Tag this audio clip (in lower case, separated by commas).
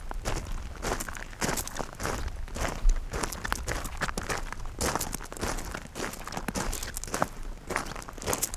footsteps